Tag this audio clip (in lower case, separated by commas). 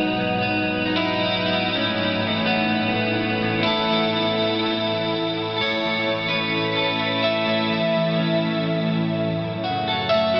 music